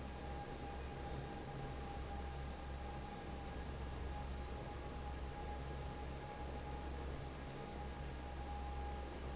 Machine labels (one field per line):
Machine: fan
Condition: normal